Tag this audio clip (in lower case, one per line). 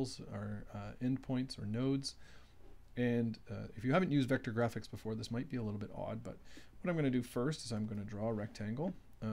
speech